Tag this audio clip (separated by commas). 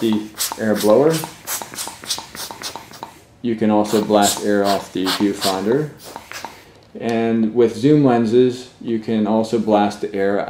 Speech